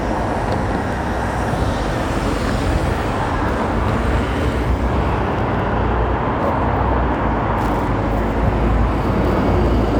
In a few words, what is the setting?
street